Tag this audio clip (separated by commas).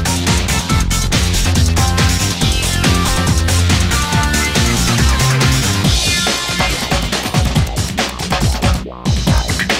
Exciting music, Music, Soundtrack music